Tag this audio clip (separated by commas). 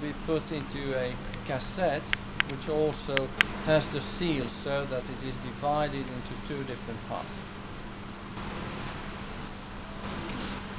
Speech